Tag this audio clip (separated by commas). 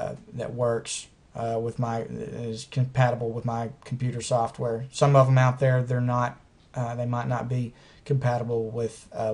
Speech